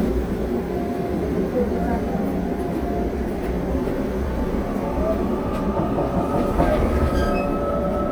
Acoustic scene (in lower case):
subway train